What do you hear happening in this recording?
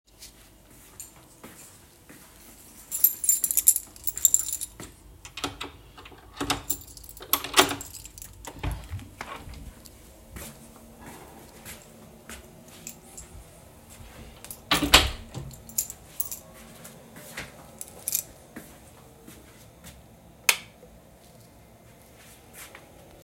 I walked toward the front door with my phone in hand. I took out my keys and jingled them while finding the right one. I unlocked and opened the door, walked inside, closed the door behind me, and flicked the light switch on.